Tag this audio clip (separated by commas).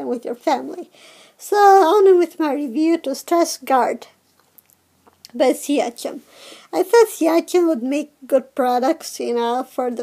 Speech